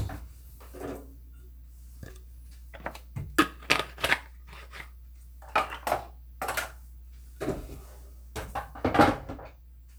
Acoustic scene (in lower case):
kitchen